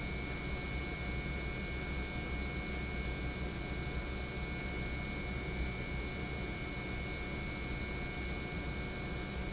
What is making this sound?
pump